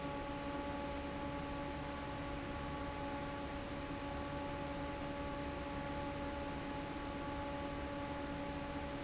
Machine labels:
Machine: fan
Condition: normal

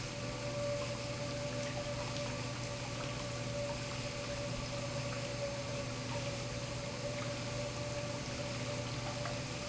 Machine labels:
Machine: pump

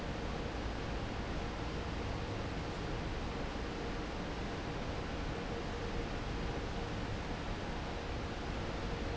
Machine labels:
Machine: fan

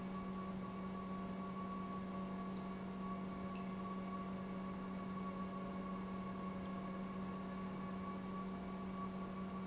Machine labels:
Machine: pump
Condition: normal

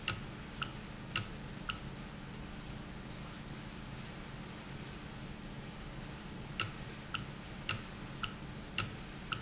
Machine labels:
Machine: valve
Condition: normal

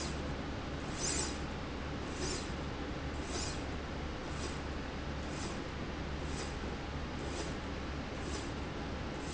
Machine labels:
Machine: slide rail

